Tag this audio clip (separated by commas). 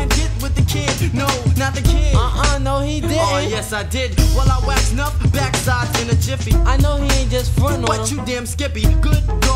Music, Rapping